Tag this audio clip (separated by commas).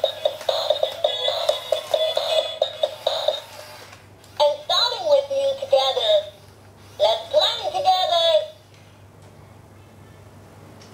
Speech, Music